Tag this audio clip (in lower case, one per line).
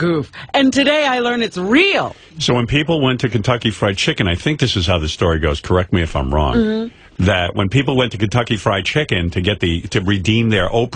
speech